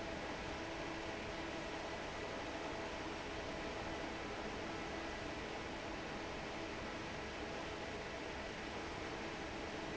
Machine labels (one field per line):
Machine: fan